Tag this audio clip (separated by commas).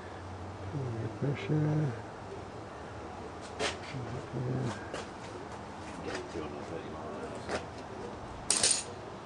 Speech